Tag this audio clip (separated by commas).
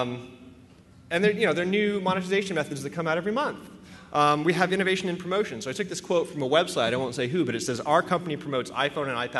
Speech